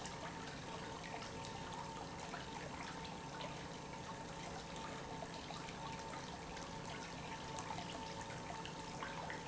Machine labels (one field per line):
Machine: pump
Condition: normal